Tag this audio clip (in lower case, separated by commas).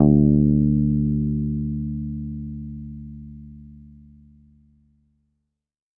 guitar, plucked string instrument, musical instrument, bass guitar, music